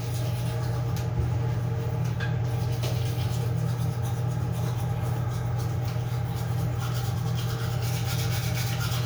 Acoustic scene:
restroom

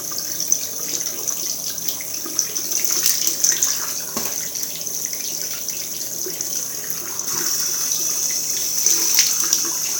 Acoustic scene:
restroom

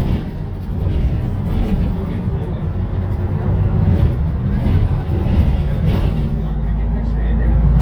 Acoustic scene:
bus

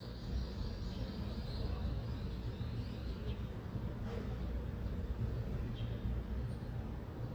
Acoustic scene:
residential area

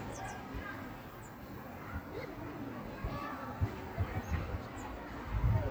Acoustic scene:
park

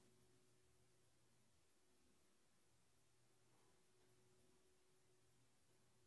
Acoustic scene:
elevator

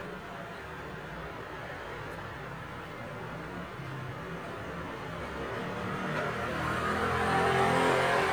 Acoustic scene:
residential area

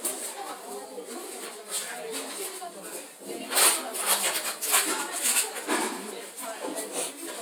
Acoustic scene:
kitchen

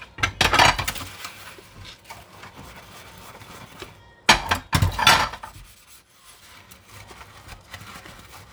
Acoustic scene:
kitchen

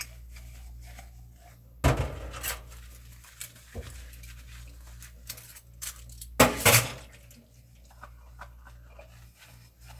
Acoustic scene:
kitchen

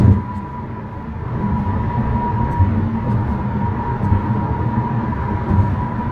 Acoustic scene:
car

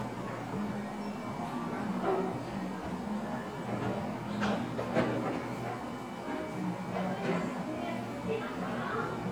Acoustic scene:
cafe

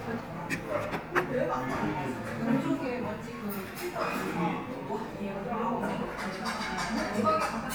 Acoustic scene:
crowded indoor space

